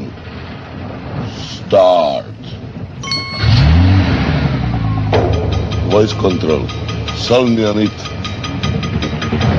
An adult male speaks, an engine starts and revs up, and pinging is present